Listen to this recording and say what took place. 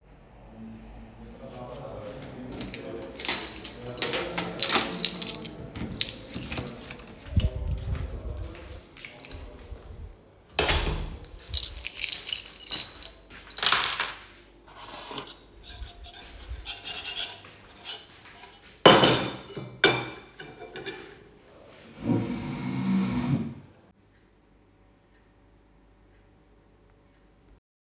I searched for a key, opened a door to a kitchen, and then locked it. I started to put away and clean the cutlery. I then moved the chair and sat down.